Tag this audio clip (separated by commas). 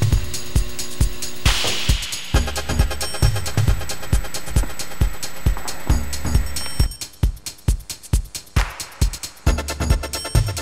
Music